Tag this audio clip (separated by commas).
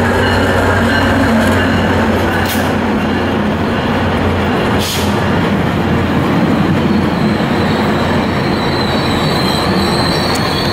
Train, Train whistle, Rail transport, Vehicle, Railroad car